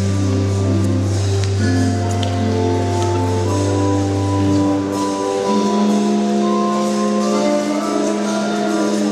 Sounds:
Music, House music

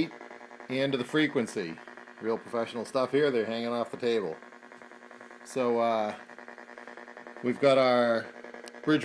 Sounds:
Speech

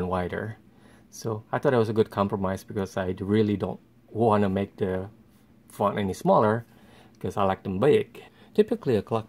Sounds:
Speech

